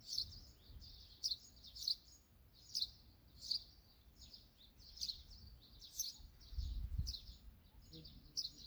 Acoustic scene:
park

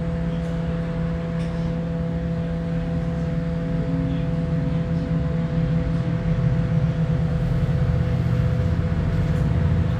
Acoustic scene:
bus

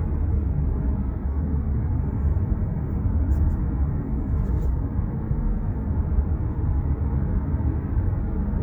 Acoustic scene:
car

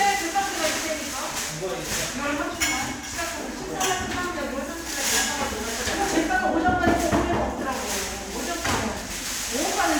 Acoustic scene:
crowded indoor space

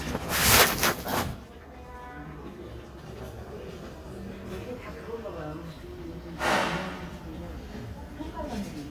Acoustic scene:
crowded indoor space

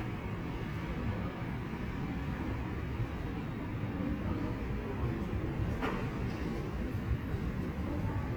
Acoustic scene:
subway station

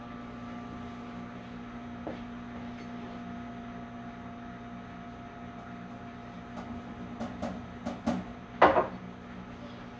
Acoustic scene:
kitchen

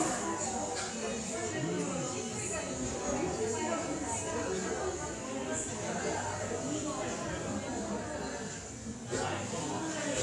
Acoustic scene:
cafe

